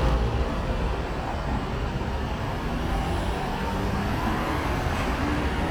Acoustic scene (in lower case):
street